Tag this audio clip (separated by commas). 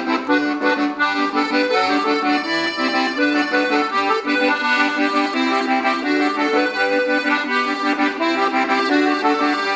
playing accordion, Music, Accordion